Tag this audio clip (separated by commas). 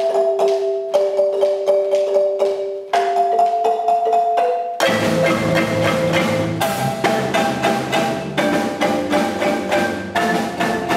Glockenspiel, Mallet percussion, xylophone